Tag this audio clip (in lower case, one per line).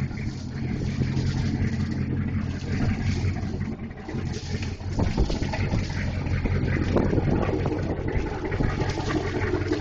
vehicle